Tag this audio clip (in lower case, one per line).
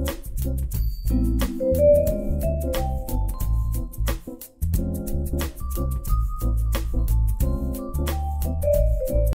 music